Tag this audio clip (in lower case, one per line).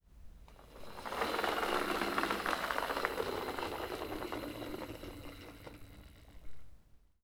engine